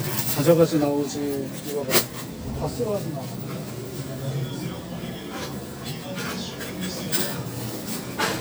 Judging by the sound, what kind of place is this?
crowded indoor space